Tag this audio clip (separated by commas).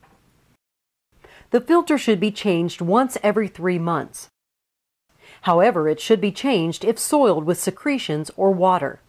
Speech